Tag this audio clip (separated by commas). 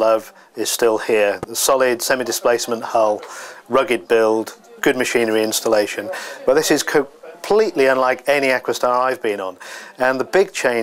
Speech